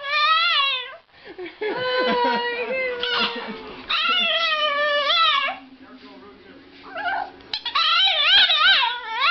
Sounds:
speech

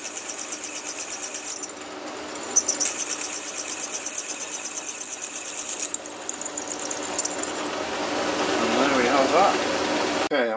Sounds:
tools

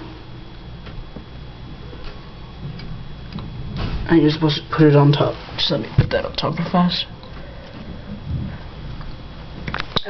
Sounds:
speech

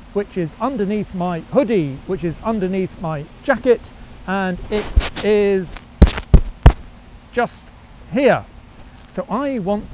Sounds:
speech

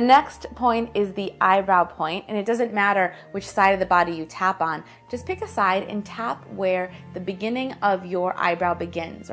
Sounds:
music
speech

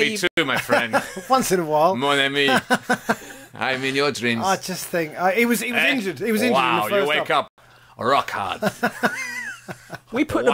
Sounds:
speech

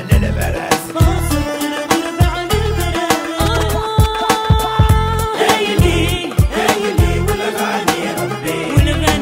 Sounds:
salsa music

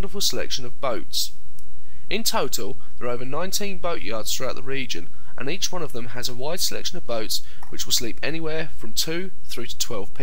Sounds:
speech

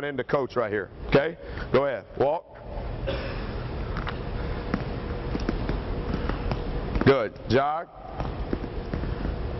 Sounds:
speech

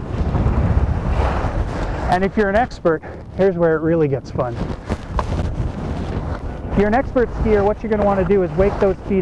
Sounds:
outside, rural or natural
speech

